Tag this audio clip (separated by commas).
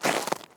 Walk